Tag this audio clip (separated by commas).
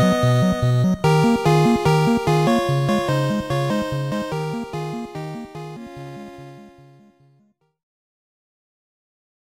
Music